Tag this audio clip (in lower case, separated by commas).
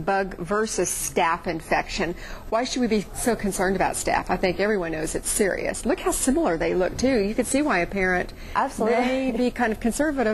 speech